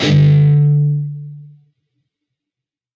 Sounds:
guitar, musical instrument, plucked string instrument, music

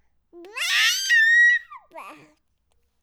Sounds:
crying, human voice, screaming

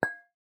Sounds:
clink, glass

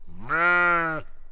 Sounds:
livestock, animal

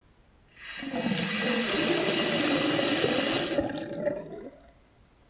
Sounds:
sink (filling or washing), home sounds

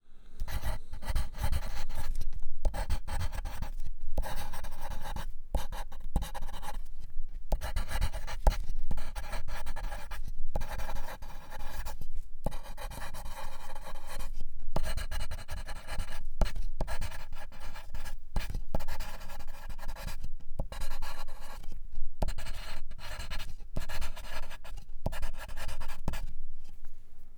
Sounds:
home sounds, writing

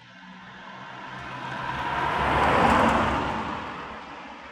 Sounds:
vehicle, motor vehicle (road), car, car passing by

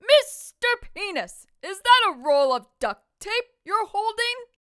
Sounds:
shout, human voice, speech, yell, female speech

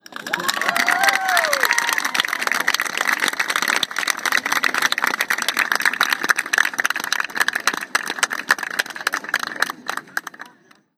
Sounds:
cheering, applause, human group actions

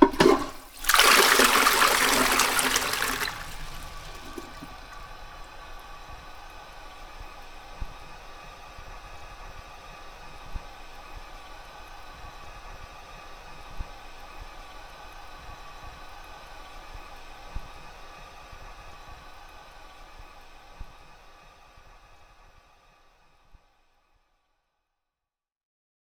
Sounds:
home sounds, toilet flush

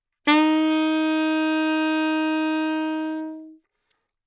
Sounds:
music, musical instrument, wind instrument

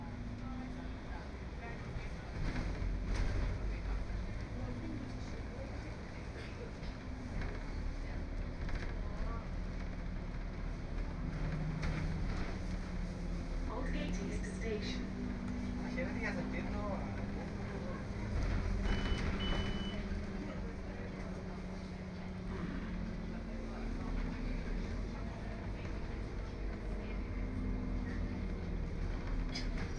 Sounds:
vehicle, motor vehicle (road), bus

